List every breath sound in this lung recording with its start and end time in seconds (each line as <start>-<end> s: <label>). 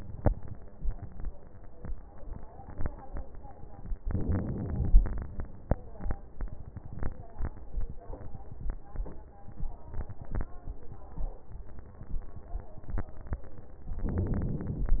4.05-5.38 s: inhalation
14.04-15.00 s: inhalation